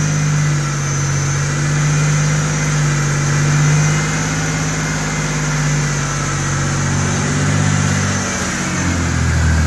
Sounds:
Car, Engine, Vehicle

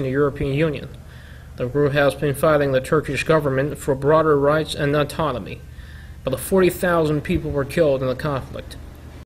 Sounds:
Speech

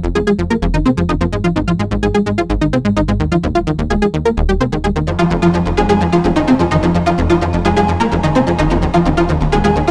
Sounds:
Electronic music, Electronica, Trance music, Music

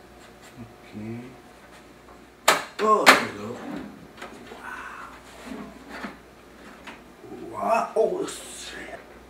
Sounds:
Speech, inside a small room

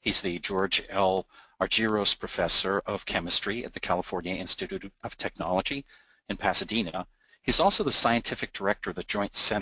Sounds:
Speech

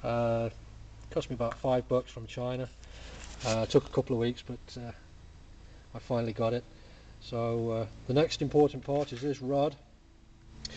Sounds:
Speech

